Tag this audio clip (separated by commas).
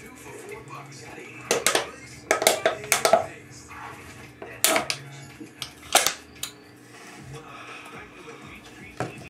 Speech